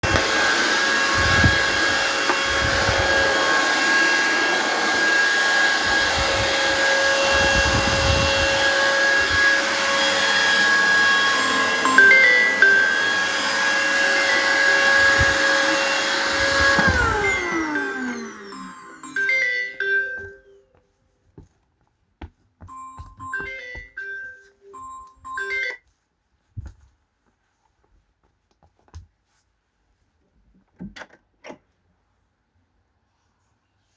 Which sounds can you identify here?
vacuum cleaner, phone ringing, footsteps, door